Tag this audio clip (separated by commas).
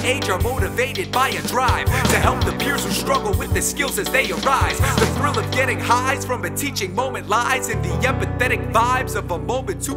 Pop music, Music